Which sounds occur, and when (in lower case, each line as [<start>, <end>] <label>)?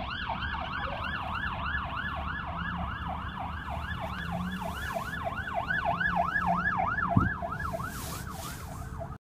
[0.00, 1.81] car passing by
[0.00, 9.13] police car (siren)
[0.78, 1.03] car alarm
[3.58, 7.36] car passing by
[4.00, 4.10] generic impact sounds
[4.12, 4.17] tick
[4.29, 5.14] surface contact
[7.12, 7.26] door
[7.50, 8.98] surface contact